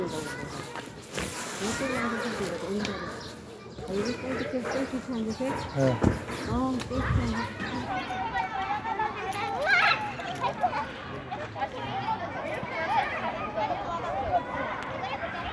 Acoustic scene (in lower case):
residential area